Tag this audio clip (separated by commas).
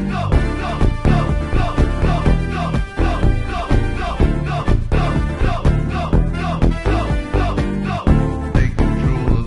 Music, Video game music